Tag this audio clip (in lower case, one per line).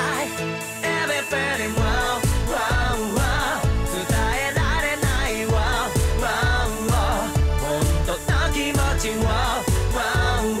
music